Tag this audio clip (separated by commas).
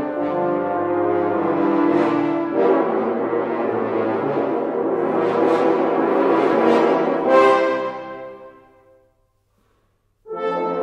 Brass instrument, French horn, playing french horn